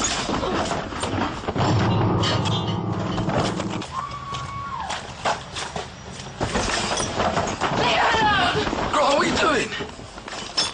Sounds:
inside a large room or hall, speech

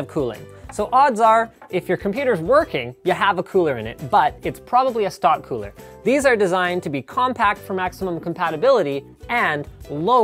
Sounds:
speech, music

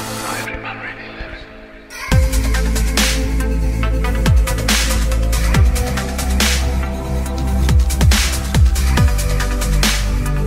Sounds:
music, speech

